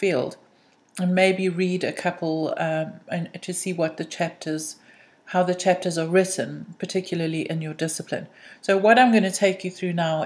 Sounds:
Speech

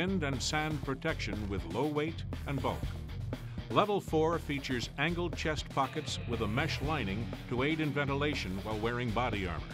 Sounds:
Speech, Music

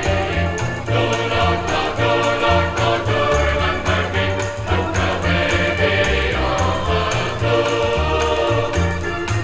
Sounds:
Choir, Music

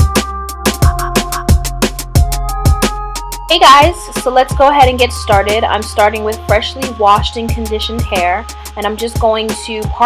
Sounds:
Speech, Music

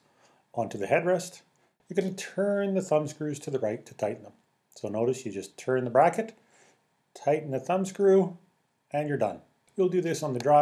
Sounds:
Speech

